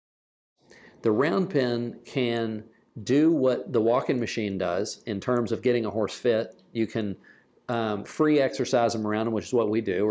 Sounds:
speech

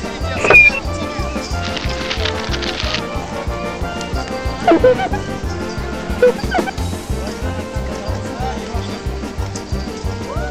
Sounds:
speech
music

